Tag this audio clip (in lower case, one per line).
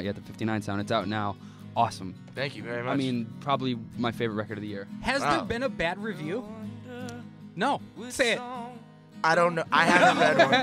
speech
music